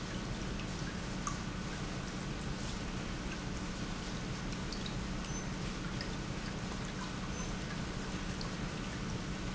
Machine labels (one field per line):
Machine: pump